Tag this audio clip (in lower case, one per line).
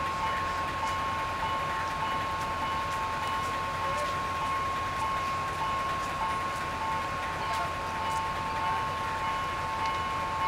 vehicle